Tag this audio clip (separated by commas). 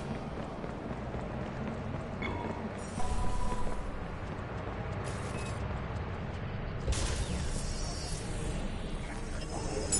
Speech